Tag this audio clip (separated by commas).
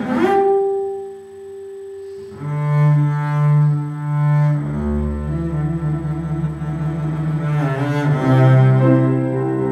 playing double bass, Double bass, Music